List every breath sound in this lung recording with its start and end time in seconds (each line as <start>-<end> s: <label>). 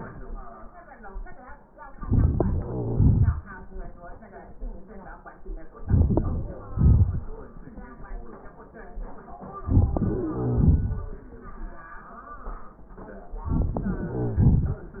1.89-2.64 s: inhalation
1.89-2.64 s: crackles
2.66-3.93 s: exhalation
5.79-6.61 s: inhalation
5.79-6.61 s: crackles
6.59-7.54 s: exhalation
9.60-10.34 s: inhalation
9.60-10.34 s: crackles
13.44-14.11 s: inhalation
13.44-14.11 s: crackles
14.12-14.90 s: exhalation
14.12-14.90 s: crackles